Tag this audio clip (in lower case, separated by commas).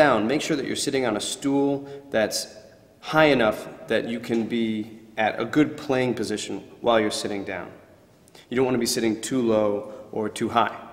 speech